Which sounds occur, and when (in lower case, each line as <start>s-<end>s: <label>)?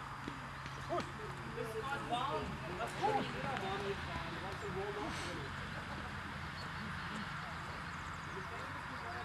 0.0s-9.2s: background noise
0.8s-1.0s: man speaking
1.2s-5.5s: man speaking
5.5s-6.6s: laughter
8.2s-9.2s: man speaking